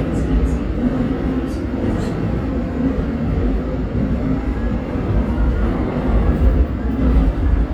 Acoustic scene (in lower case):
subway train